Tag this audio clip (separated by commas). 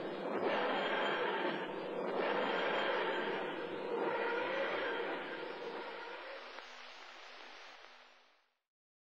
Sound effect